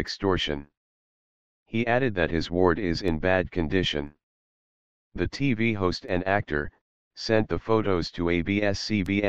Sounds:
Speech

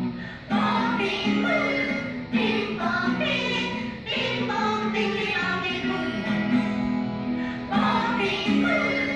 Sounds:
Music

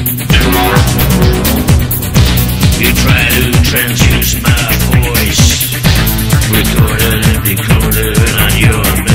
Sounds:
Music

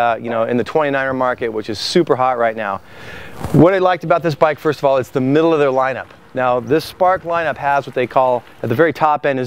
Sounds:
Speech

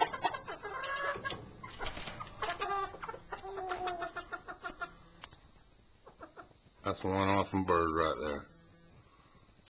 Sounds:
Animal, Speech

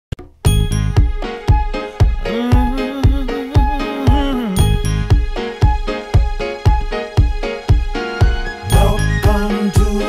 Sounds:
Music

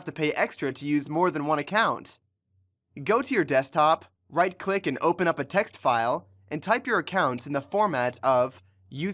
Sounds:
Speech

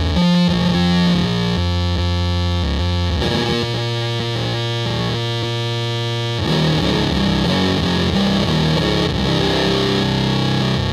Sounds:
Electric guitar, Music

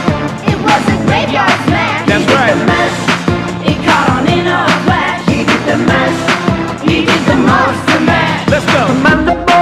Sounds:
Sound effect, Music

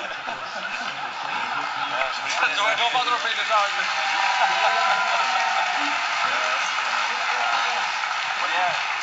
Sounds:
Speech, man speaking, Conversation, Narration

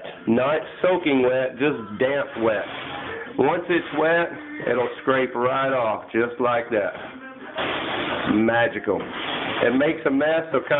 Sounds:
Speech

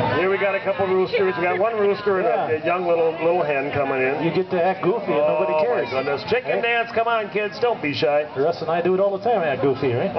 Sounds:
Speech

